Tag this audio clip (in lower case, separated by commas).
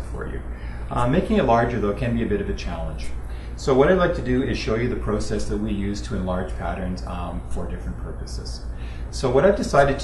speech